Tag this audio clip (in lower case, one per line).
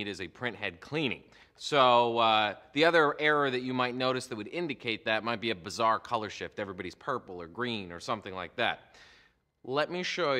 speech